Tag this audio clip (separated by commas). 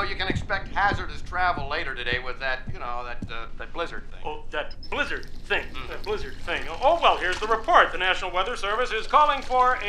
Radio, Speech